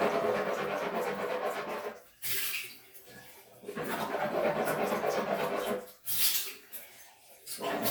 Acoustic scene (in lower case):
restroom